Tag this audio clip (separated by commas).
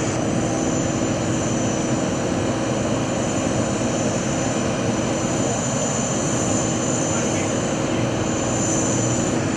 Aircraft engine, outside, urban or man-made, Aircraft